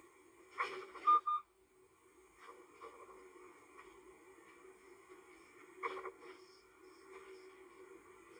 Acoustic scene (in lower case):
car